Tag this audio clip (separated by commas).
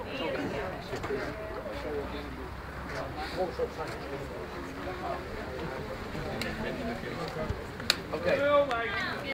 Speech